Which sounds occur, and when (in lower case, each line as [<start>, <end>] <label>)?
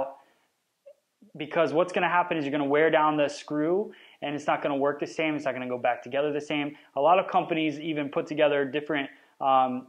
[0.00, 0.20] male speech
[0.00, 9.85] background noise
[0.22, 0.53] breathing
[0.82, 0.90] tick
[1.21, 3.92] male speech
[3.90, 4.15] breathing
[4.21, 6.70] male speech
[6.71, 6.92] breathing
[6.93, 9.11] male speech
[9.12, 9.34] breathing
[9.35, 9.85] male speech